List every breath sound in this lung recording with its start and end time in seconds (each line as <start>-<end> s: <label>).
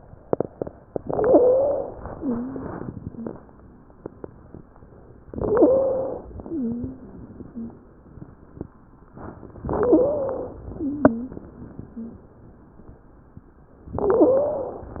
1.01-1.94 s: inhalation
1.01-1.94 s: wheeze
2.11-2.64 s: wheeze
3.06-3.42 s: wheeze
5.33-6.28 s: inhalation
5.33-6.28 s: wheeze
6.47-7.16 s: wheeze
7.48-7.84 s: wheeze
9.68-10.63 s: inhalation
9.68-10.63 s: wheeze
10.74-11.42 s: wheeze
11.90-12.26 s: wheeze
14.02-14.97 s: inhalation
14.02-14.97 s: wheeze